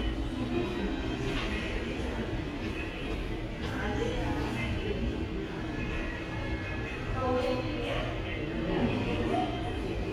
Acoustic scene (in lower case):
subway station